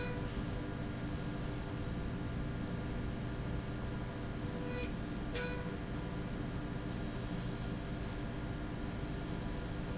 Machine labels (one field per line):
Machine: slide rail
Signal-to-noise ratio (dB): -6 dB